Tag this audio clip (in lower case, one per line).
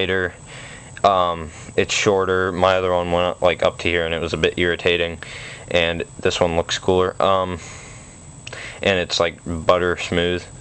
speech